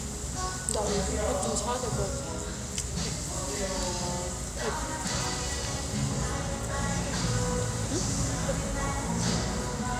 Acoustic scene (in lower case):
restaurant